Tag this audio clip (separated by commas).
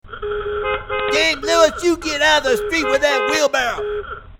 Vehicle, Alarm, Motor vehicle (road), Vehicle horn, Car, Human voice